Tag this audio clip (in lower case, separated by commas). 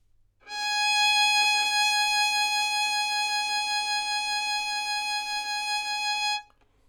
bowed string instrument, music, musical instrument